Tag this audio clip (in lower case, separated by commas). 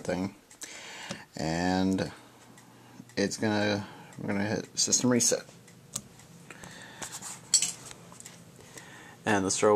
speech